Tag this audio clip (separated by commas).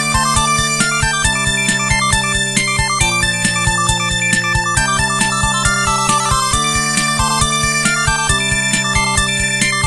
Music